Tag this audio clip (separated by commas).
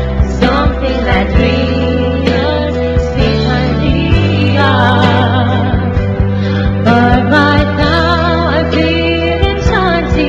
Music, Singing